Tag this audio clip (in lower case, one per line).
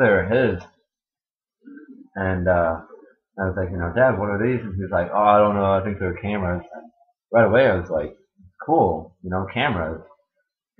speech